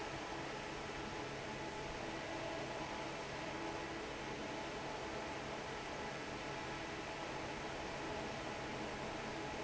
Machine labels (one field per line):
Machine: fan